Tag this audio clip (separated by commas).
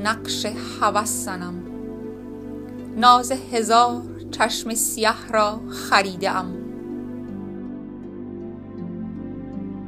Music, Speech